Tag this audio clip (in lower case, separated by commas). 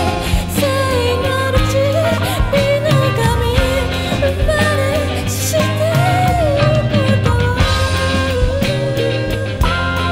music, psychedelic rock